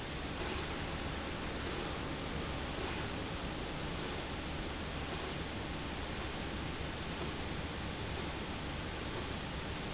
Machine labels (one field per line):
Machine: slide rail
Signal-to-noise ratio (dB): -6 dB